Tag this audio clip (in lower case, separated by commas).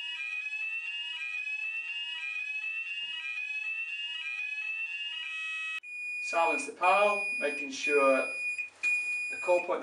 speech, smoke alarm, alarm, fire alarm